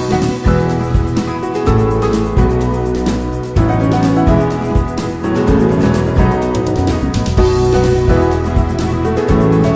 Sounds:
music

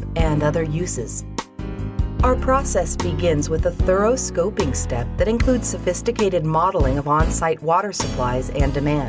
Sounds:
speech, music

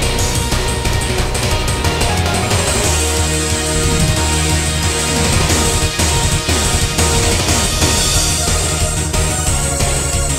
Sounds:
music

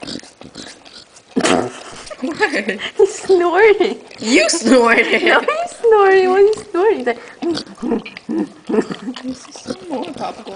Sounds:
animal, dog, speech, inside a small room, pets

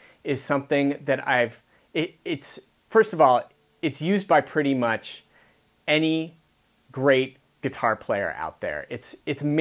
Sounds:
speech

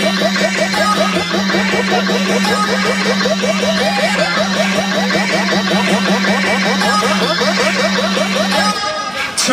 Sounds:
soundtrack music, speech, music

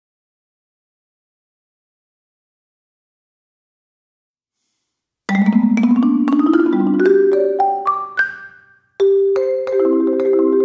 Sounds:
marimba, music, musical instrument

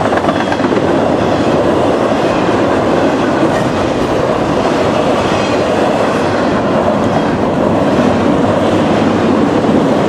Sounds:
train horning

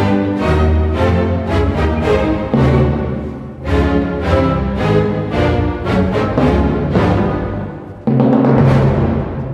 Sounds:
orchestra, musical instrument, violin, music, timpani

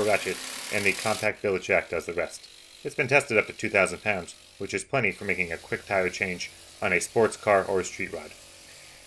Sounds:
speech

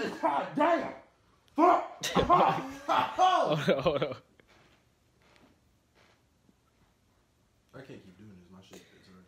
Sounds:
people coughing

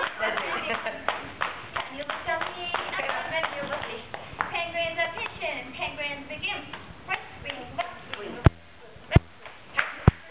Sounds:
speech

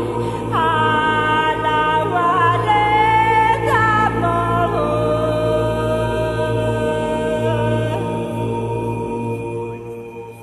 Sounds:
music

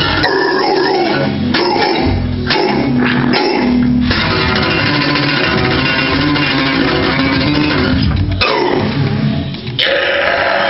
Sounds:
guitar, electric guitar, music, musical instrument, plucked string instrument

